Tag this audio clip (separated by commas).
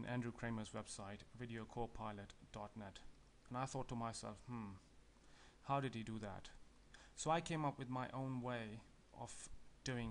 Speech